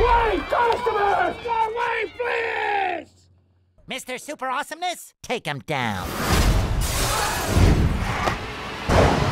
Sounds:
Speech

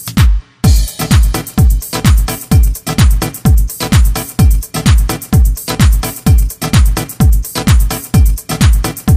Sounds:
Music, House music

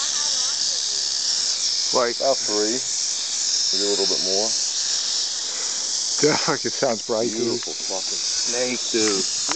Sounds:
Speech

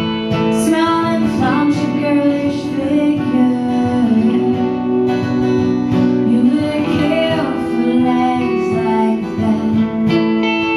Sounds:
Music

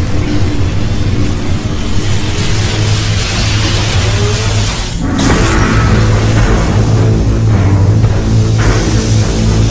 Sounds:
Music

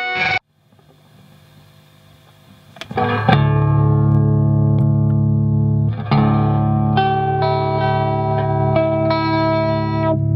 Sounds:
Music, Effects unit, Plucked string instrument, Guitar, Distortion

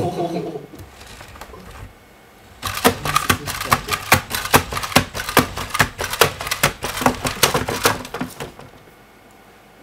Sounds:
Typewriter, inside a small room, Speech

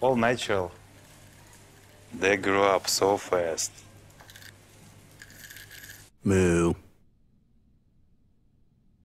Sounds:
Speech

